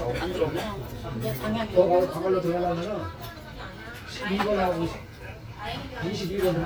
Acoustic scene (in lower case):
restaurant